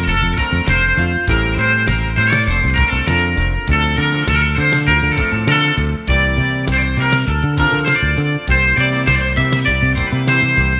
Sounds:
musical instrument
music
plucked string instrument
guitar

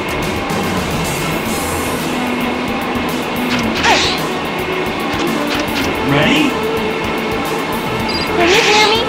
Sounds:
music
speech

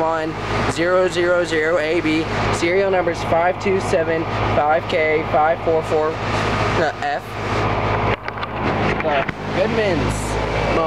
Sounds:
speech

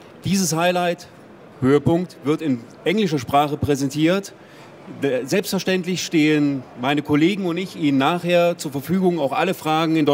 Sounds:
speech

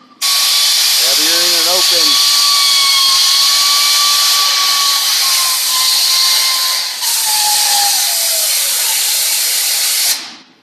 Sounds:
inside a small room
drill
speech

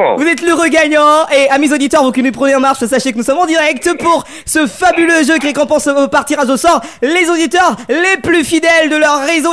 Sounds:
speech

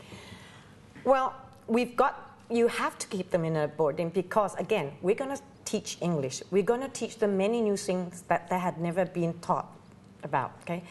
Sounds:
speech
inside a small room

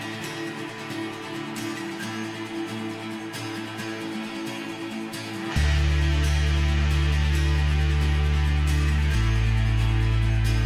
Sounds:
music

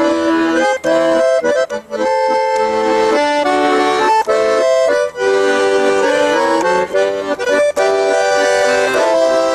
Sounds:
accordion
music
musical instrument

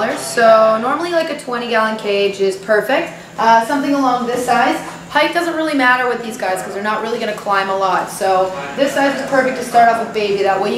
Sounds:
speech

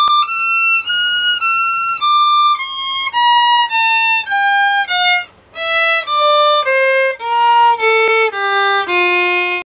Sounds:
musical instrument
music
violin

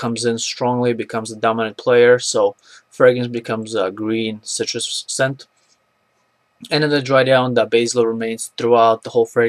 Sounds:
speech

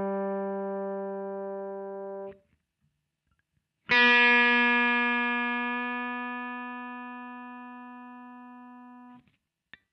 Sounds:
music
electronic tuner

